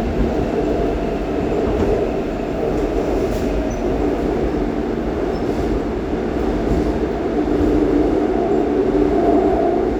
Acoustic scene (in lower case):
subway train